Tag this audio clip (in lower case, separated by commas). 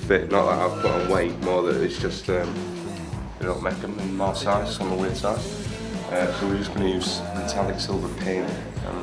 speech, music